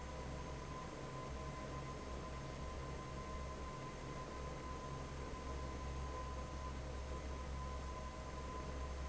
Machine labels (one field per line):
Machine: fan